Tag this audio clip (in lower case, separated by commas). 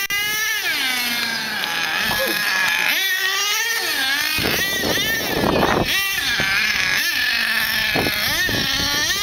car passing by, vehicle, car